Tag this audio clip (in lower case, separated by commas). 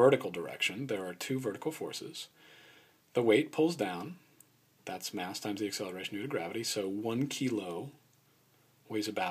speech